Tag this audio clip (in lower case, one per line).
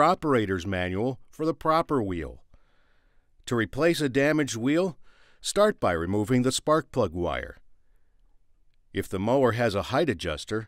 speech